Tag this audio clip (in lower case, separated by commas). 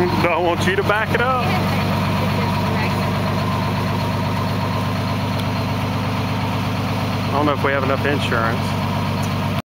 vehicle, speech, truck